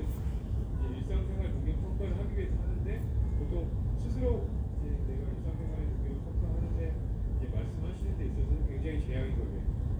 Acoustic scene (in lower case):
crowded indoor space